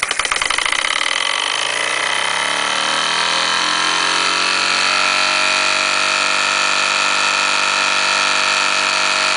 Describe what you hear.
An engine idling, then revving up